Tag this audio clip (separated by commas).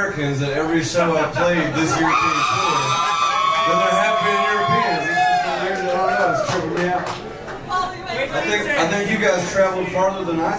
Speech